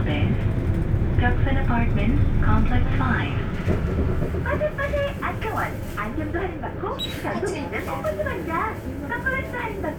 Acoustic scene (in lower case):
bus